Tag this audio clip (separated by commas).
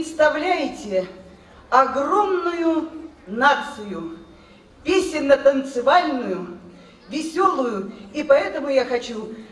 Speech